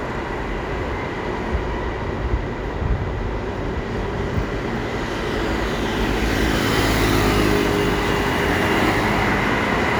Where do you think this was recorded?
on a street